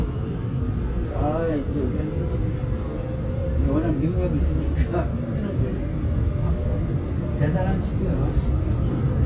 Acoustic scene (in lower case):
subway train